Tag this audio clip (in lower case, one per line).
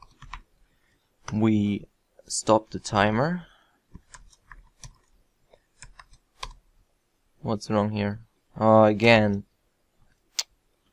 clicking
speech
inside a small room